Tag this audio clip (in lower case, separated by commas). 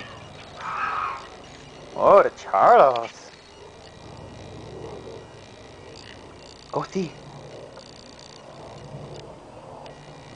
speech